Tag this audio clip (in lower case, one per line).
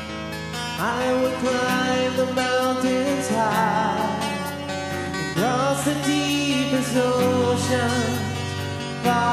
music